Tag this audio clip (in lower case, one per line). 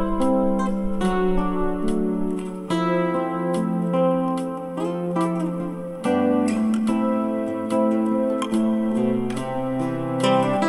bass guitar
guitar
music
musical instrument
acoustic guitar